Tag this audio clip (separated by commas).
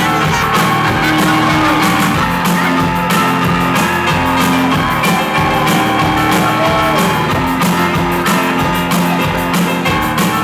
Crowd, Music